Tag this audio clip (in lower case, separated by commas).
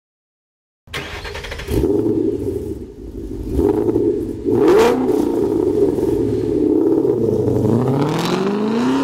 engine, vehicle, car, motor vehicle (road)